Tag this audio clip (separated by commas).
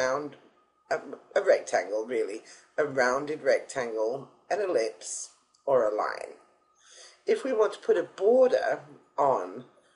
Speech